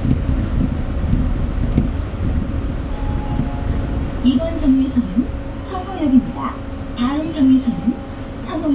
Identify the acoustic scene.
bus